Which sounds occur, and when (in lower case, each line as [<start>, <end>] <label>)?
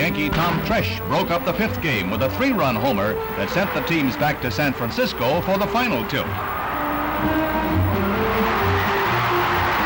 [0.01, 9.85] music
[0.01, 6.26] male speech
[6.24, 9.85] crowd